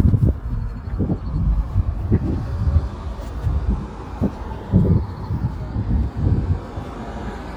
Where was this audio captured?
in a residential area